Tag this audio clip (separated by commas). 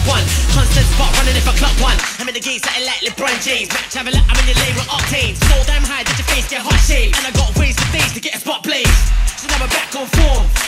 Electronic music, Dubstep, Music